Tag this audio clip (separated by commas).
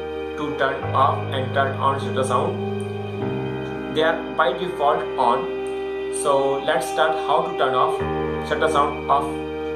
Music, Speech